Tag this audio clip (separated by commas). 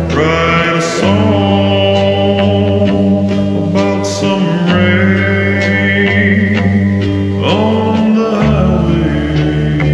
Music